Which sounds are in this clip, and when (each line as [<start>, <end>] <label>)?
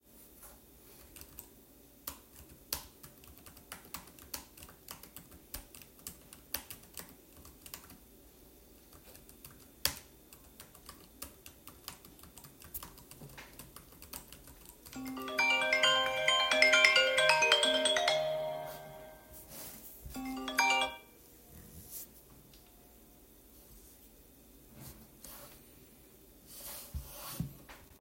[0.32, 14.71] keyboard typing
[14.86, 21.23] phone ringing